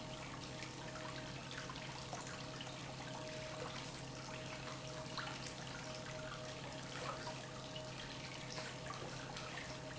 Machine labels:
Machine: pump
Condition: normal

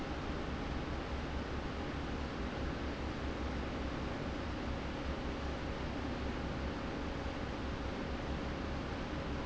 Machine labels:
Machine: fan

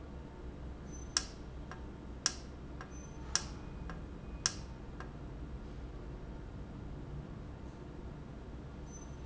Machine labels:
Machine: valve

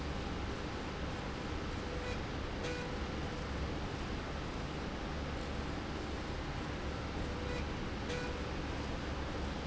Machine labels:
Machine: slide rail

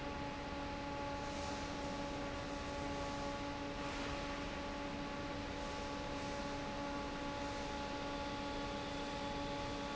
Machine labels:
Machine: fan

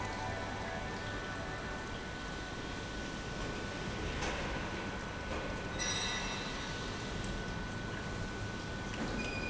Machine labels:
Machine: pump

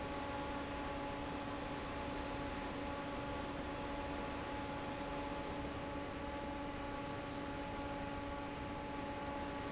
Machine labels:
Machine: fan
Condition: normal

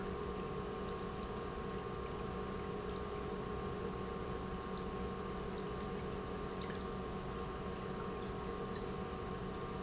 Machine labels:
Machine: pump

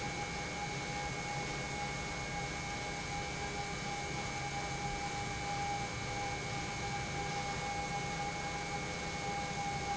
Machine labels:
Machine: pump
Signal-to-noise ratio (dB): -6 dB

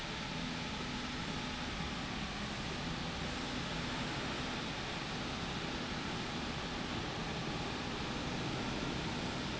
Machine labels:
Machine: slide rail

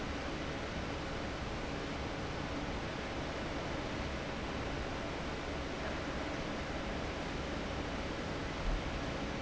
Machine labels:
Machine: fan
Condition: abnormal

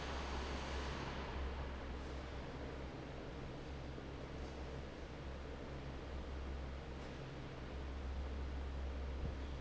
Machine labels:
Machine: fan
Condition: normal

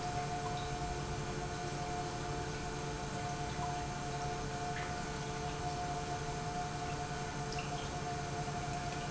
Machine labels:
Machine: pump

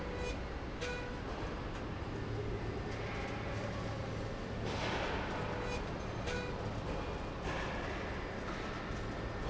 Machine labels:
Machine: slide rail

